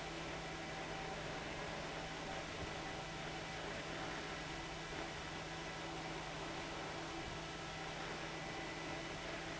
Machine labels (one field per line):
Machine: fan